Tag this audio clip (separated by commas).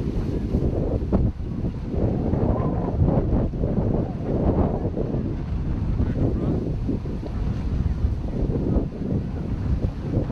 Speech